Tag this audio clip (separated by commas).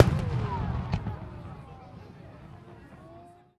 Fireworks, Explosion, Human group actions, Crowd